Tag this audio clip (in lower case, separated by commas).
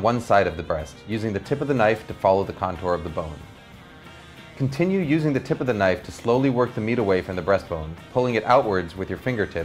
speech, music